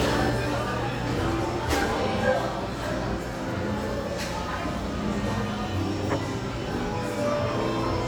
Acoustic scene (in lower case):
cafe